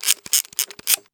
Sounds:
Mechanisms, Camera

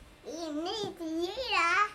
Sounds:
Speech, Human voice

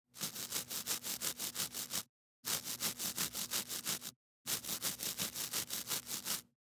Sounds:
Domestic sounds

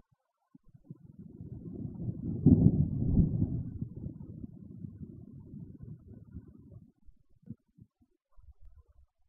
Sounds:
Thunderstorm, Thunder

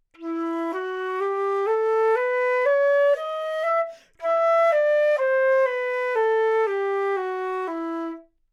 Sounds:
Musical instrument, woodwind instrument, Music

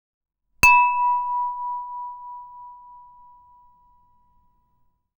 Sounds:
dishes, pots and pans, Glass, Domestic sounds, Chink

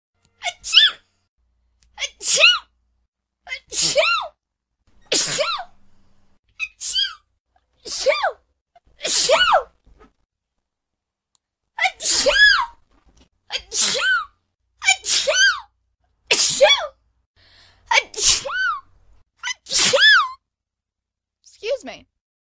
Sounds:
Respiratory sounds, Sneeze

